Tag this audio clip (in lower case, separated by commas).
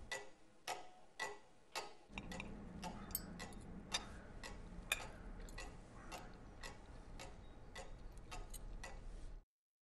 tick-tock